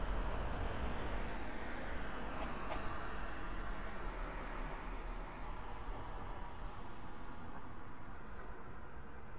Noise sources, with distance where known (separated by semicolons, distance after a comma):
background noise